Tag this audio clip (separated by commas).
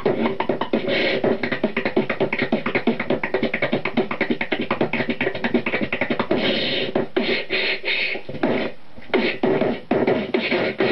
Beatboxing